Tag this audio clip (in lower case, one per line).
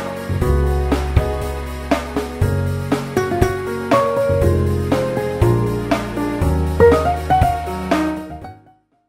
music